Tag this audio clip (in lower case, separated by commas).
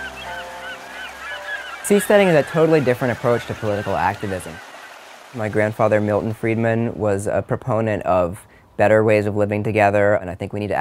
speech